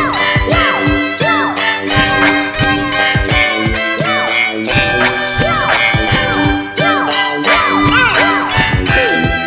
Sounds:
music

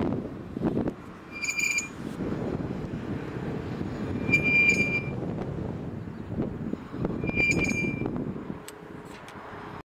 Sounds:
wind noise (microphone)

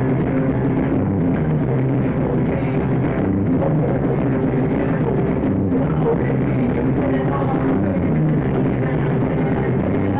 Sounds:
music
musical instrument

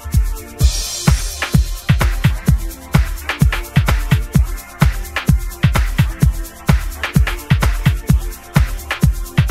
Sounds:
sound effect
music

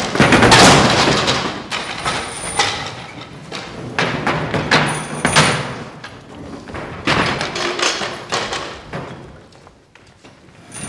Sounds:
thump

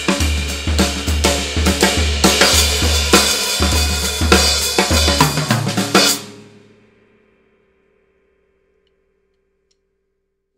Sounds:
music

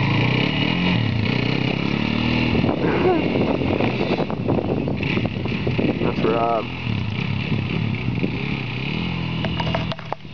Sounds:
speech

